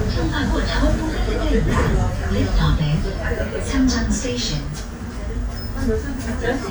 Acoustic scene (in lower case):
bus